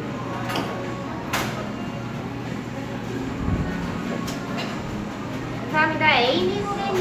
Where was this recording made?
in a cafe